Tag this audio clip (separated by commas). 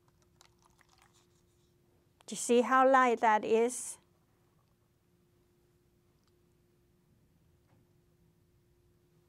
Speech